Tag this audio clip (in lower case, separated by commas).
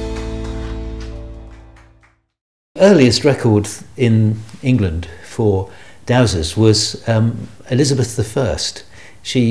speech, music